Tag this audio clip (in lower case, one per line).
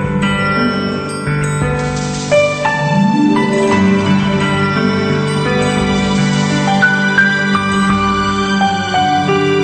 music